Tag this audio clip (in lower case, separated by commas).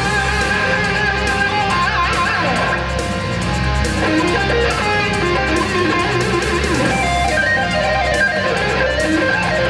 strum, plucked string instrument, electric guitar, music, guitar, musical instrument